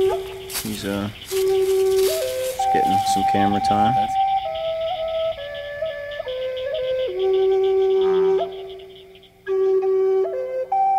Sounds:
outside, rural or natural
speech
music

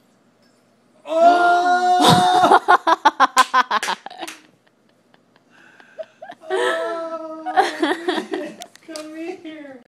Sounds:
speech

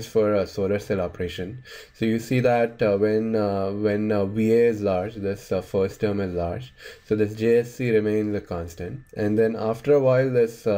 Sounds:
speech

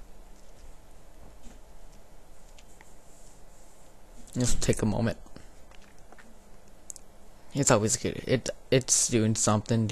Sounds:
speech

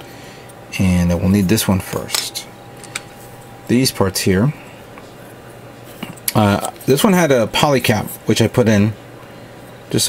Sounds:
inside a small room
speech

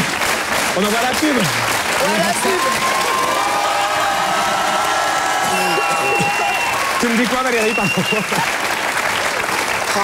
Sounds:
speech
laughter
applause

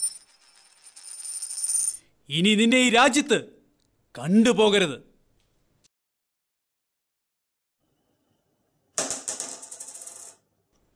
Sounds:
speech

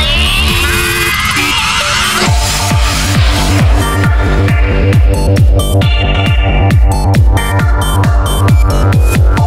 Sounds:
music
trance music

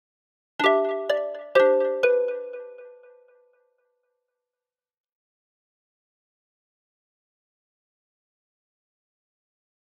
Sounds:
music

